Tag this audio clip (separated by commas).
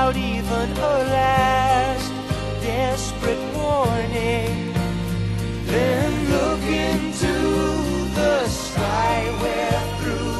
Music